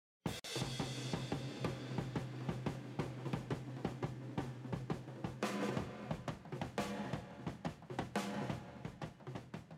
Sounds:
percussion
drum
snare drum
drum kit
rimshot
bass drum

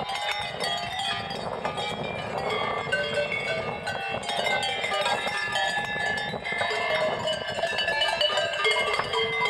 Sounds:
bovinae cowbell

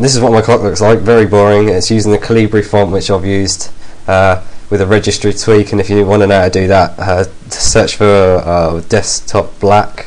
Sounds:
speech

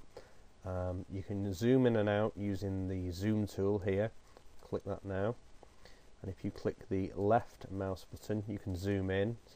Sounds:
speech

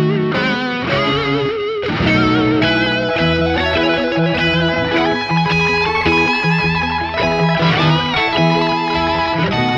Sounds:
guitar
musical instrument
electric guitar
strum
music
plucked string instrument

